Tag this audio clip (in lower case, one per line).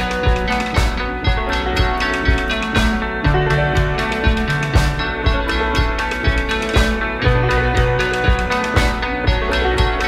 background music
music